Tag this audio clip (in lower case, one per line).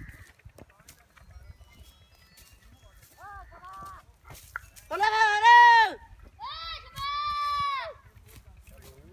speech